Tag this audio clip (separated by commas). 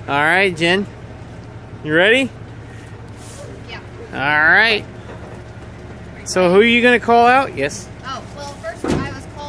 Speech